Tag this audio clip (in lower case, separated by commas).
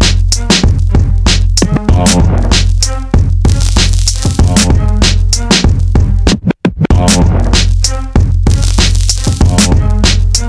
music